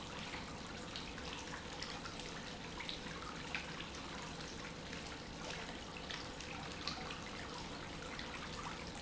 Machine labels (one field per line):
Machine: pump